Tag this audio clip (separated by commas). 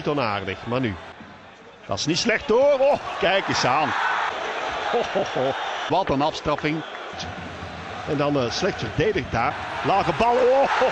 Speech